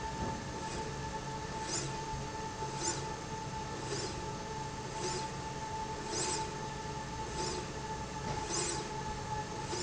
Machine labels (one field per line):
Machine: slide rail